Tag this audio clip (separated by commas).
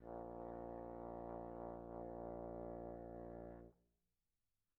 Brass instrument, Music, Musical instrument